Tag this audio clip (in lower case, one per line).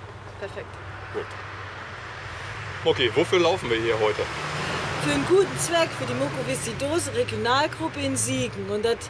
speech